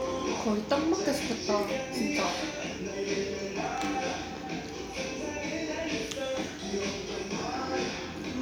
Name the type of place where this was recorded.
restaurant